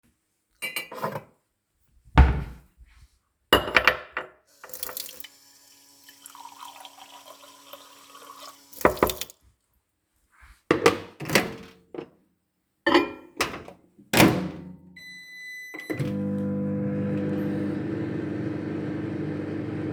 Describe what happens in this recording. I opened the cupboard to get a mug, filled it with tapped water and put it into the microwave, set the time and pressed start.